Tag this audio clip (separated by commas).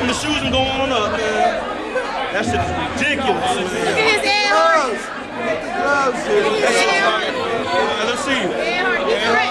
inside a public space, Speech, Chatter